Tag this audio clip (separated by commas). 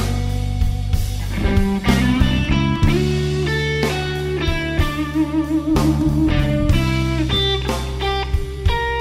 Music